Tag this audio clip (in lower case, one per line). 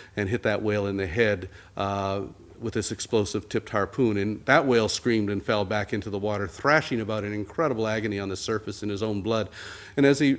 male speech
monologue
speech